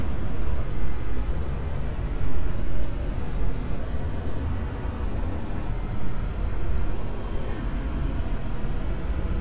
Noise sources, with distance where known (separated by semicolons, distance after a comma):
unidentified human voice, far